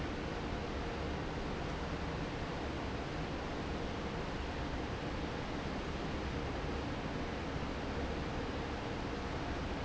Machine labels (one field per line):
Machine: fan